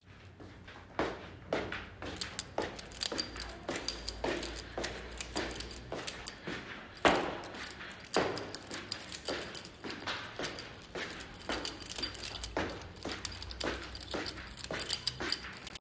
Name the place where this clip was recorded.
hallway